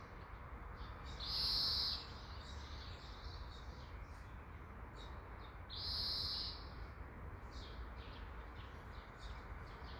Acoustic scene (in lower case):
park